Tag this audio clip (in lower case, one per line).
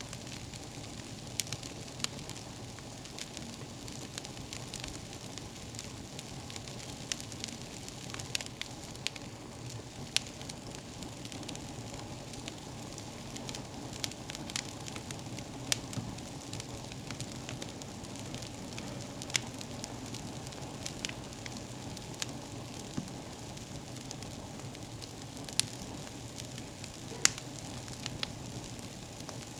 fire